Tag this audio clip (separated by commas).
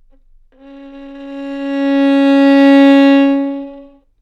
Bowed string instrument, Musical instrument, Music